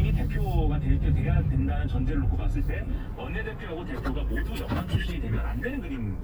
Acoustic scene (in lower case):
car